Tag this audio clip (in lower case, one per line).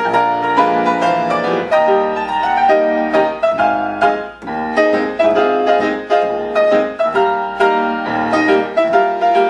music